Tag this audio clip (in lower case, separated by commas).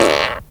fart